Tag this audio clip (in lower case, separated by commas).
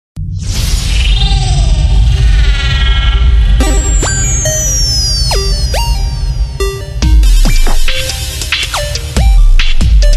electronic music, music, dubstep